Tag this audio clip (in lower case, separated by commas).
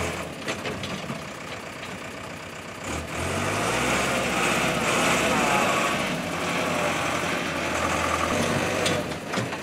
truck, vehicle, outside, rural or natural